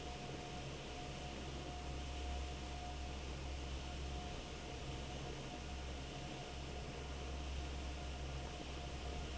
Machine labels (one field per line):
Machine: fan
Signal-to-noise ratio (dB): 6 dB